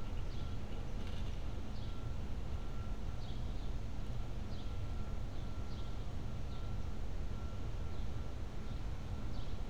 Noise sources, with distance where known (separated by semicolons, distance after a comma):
background noise